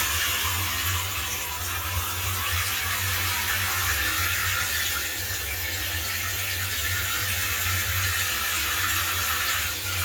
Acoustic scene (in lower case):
restroom